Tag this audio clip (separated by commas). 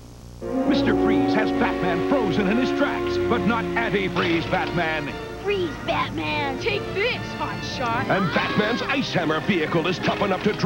Music, Speech